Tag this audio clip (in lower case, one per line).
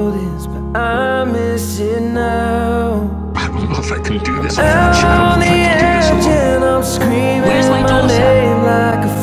speech
music